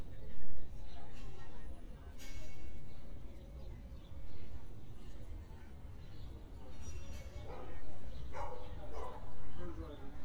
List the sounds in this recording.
non-machinery impact, person or small group talking, dog barking or whining